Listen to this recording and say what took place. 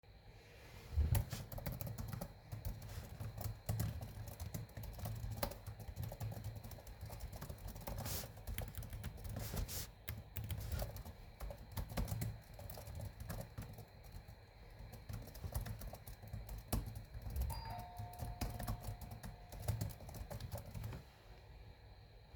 I was working on my assigment. While i was doing that, somebody rung the bell to my doors.